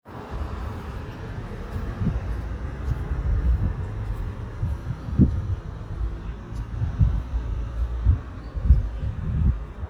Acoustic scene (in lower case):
street